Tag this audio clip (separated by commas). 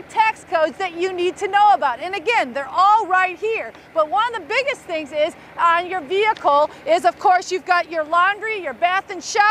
Speech